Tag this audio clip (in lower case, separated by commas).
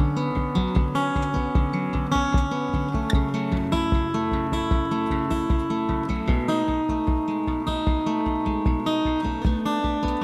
music